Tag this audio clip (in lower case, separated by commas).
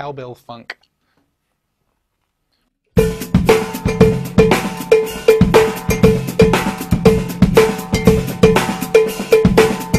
cymbal, cowbell, bass drum, hi-hat, drum, drum kit, percussion, snare drum, rimshot